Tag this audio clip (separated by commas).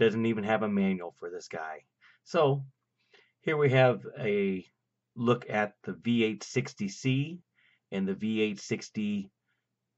Speech